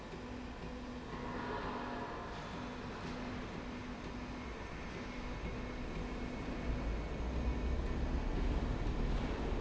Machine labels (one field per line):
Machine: slide rail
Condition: normal